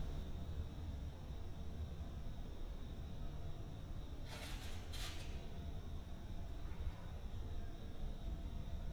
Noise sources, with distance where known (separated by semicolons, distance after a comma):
background noise